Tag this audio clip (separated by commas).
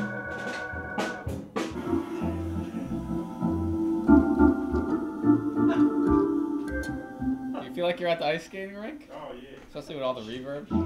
Speech, Music